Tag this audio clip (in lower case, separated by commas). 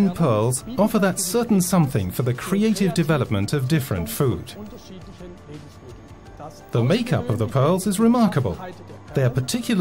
speech, music